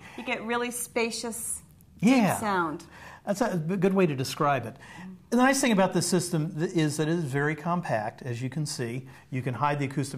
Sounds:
Female speech

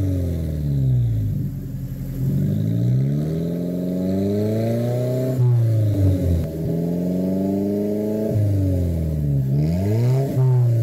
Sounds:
Car, outside, urban or man-made, Vehicle

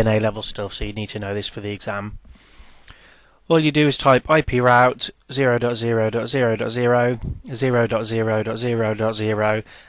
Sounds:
Speech

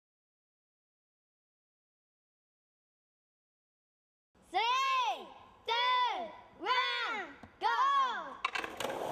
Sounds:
Skateboard, Speech

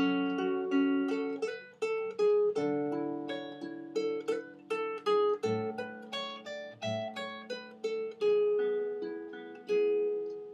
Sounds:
Musical instrument, Music, Plucked string instrument, Guitar, Acoustic guitar

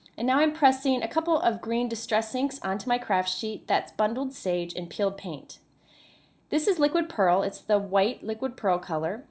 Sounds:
Speech

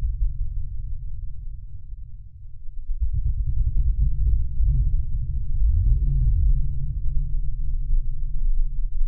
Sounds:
Music, Synthesizer, Musical instrument, playing synthesizer

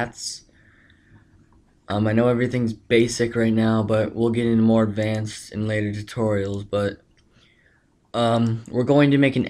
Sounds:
Clicking

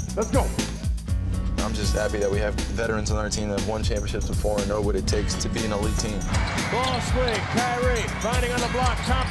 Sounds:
inside a large room or hall, Speech, Music

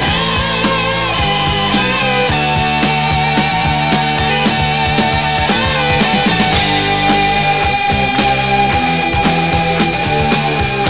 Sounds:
Grunge, Music

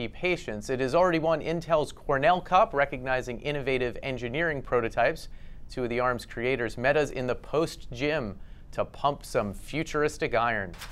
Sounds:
Speech

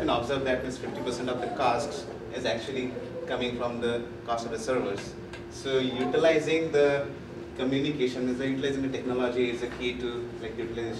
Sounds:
Speech

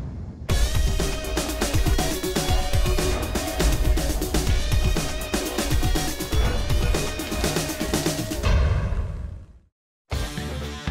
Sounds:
Music

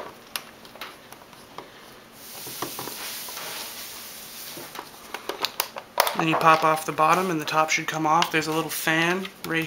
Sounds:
Speech, inside a small room

